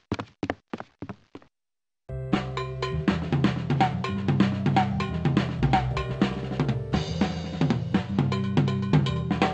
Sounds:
Snare drum, Rimshot, Drum, Drum kit, Percussion, Bass drum

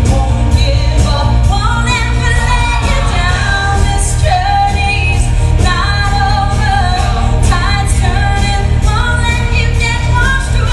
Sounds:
Music

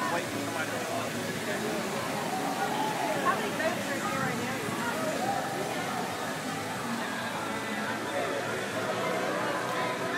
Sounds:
Music, Speech

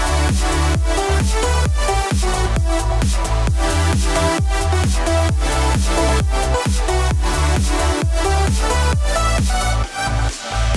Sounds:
Music

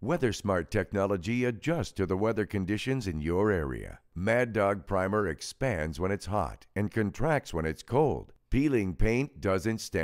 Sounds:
Speech

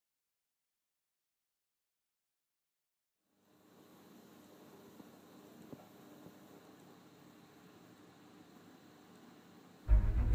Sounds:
Music

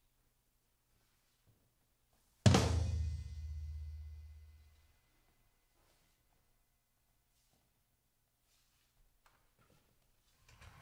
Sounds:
Drum kit, Music, Musical instrument, Drum

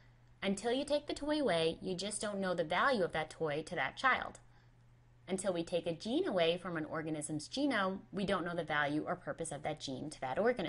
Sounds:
Speech

